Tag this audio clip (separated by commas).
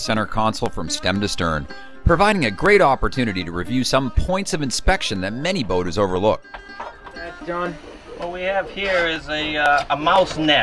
Speech, Music